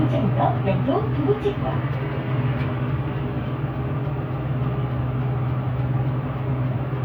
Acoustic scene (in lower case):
bus